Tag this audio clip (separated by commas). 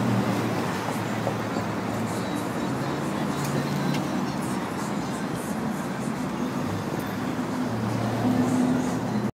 Vehicle, Car, Music